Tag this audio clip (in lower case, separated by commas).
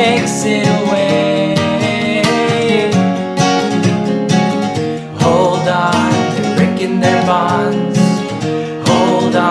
music